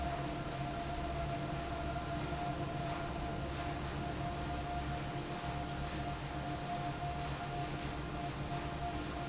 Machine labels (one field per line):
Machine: fan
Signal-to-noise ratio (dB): -6 dB